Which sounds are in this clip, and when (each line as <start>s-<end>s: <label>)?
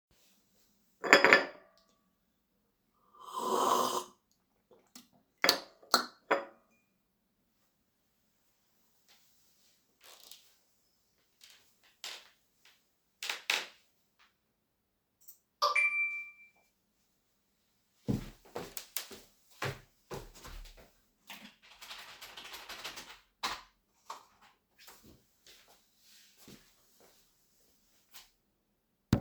0.7s-6.8s: cutlery and dishes
15.0s-16.6s: phone ringing
17.9s-23.0s: footsteps
21.2s-24.5s: keyboard typing